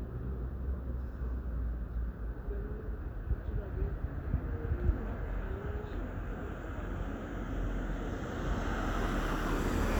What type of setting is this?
residential area